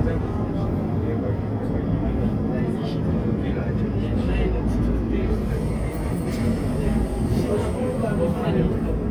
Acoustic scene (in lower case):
subway train